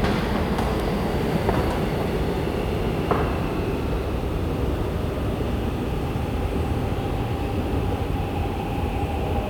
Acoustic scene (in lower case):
subway station